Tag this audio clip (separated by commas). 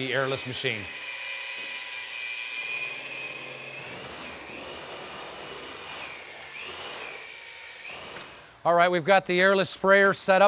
Speech